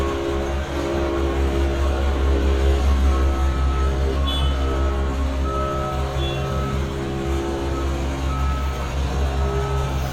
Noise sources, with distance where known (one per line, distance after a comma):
car horn, near
reverse beeper, near